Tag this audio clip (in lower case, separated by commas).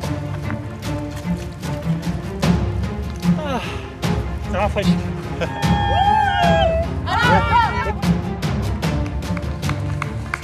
speech, music